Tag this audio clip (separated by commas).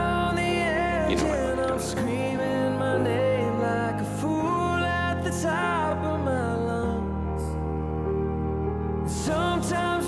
Speech, Music